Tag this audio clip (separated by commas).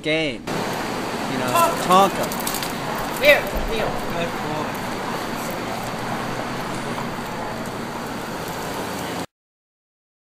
Traffic noise